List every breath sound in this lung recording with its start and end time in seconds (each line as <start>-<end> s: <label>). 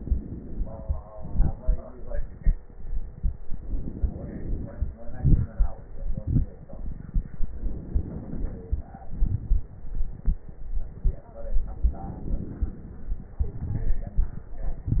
0.00-1.05 s: inhalation
1.04-3.40 s: exhalation
1.04-3.40 s: crackles
3.46-4.96 s: inhalation
4.95-7.53 s: exhalation
4.95-7.53 s: crackles
7.56-9.06 s: inhalation
9.08-11.39 s: exhalation
9.08-11.39 s: crackles
11.43-13.41 s: inhalation
13.41-15.00 s: exhalation
13.41-15.00 s: crackles